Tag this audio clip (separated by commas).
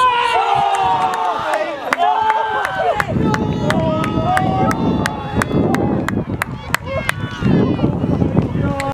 Speech